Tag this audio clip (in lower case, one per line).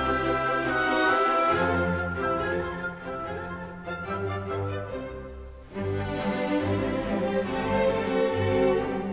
music